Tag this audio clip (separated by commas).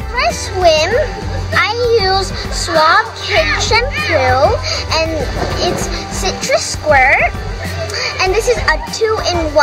Music, Child speech, outside, urban or man-made, Speech